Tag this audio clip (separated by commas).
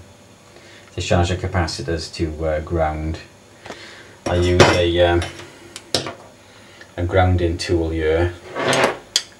Speech